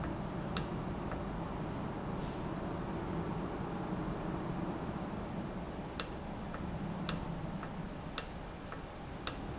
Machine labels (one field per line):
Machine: valve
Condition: normal